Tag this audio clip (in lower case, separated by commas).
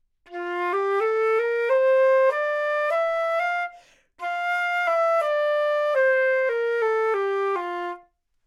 music, woodwind instrument, musical instrument